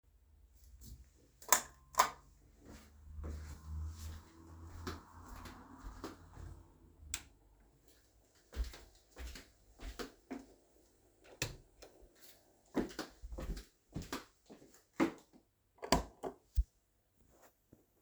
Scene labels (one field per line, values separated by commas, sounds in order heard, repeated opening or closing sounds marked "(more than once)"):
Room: kitchen, hallway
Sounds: light switch, footsteps